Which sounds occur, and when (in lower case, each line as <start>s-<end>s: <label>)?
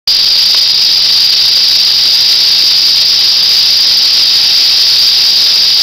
0.0s-5.8s: rattle